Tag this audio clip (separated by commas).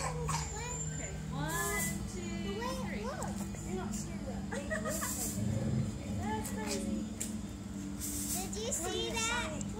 Speech